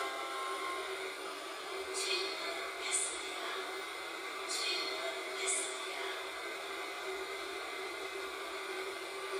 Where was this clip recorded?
on a subway train